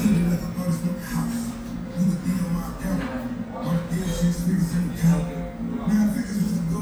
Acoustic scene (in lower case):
restaurant